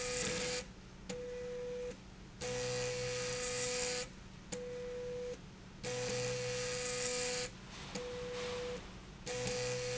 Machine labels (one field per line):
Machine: slide rail